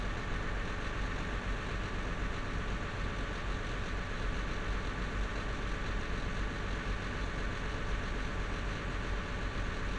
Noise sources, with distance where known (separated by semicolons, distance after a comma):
large-sounding engine, near